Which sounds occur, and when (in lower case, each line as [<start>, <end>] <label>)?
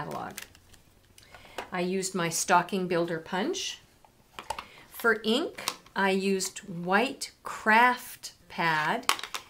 [0.00, 0.45] male speech
[0.00, 9.45] background noise
[0.62, 0.87] clicking
[4.58, 4.86] breathing
[8.89, 9.34] tap